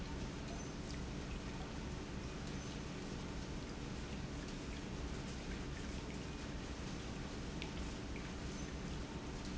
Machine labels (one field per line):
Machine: pump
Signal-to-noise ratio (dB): 0 dB